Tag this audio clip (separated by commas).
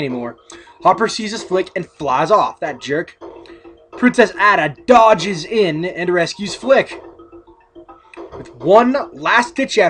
Speech, Music